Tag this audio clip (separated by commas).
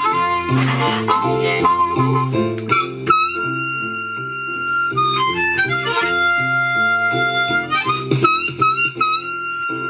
woodwind instrument, Harmonica